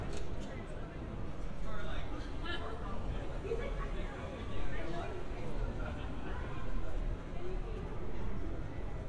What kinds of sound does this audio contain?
person or small group talking